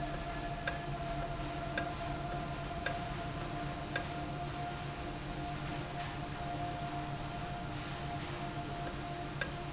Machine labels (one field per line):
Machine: valve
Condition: normal